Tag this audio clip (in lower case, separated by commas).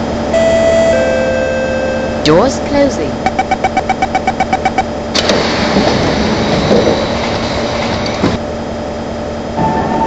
train, subway, vehicle, speech